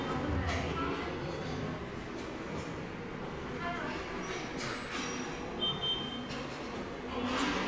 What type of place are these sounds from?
subway station